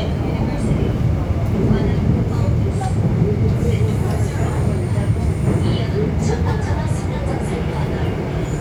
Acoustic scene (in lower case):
subway train